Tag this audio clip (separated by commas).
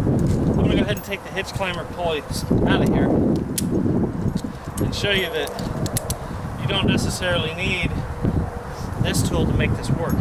Speech